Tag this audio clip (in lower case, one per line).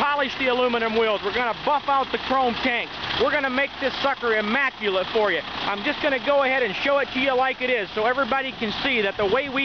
medium engine (mid frequency)
speech
engine
vehicle
idling